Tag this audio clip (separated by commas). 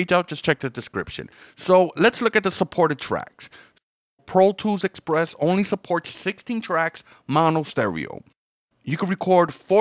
Speech